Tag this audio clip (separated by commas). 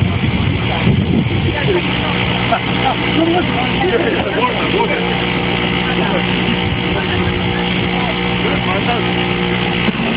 Speech